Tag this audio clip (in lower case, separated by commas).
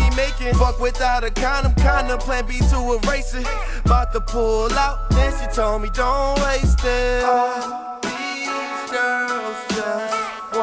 hip hop music, music